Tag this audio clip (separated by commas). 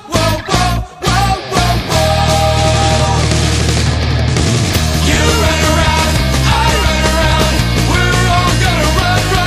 Music